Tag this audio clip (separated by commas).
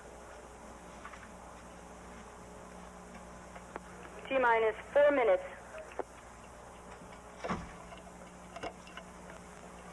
outside, rural or natural, Speech